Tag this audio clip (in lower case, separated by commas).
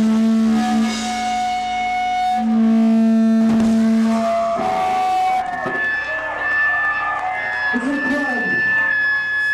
inside a public space, music, theremin, speech